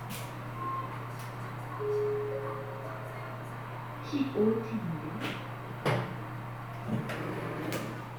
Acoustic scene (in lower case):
elevator